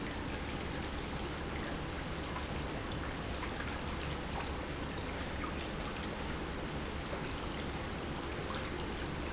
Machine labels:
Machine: pump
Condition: normal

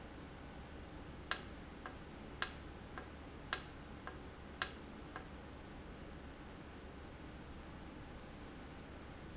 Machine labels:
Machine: valve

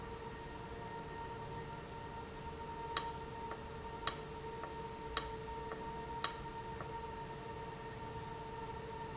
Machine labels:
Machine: valve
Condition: abnormal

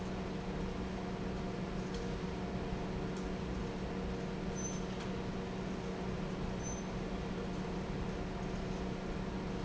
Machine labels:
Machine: fan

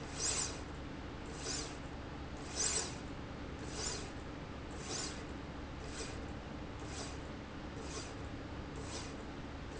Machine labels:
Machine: slide rail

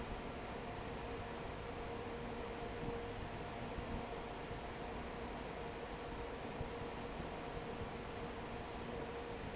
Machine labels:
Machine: fan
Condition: normal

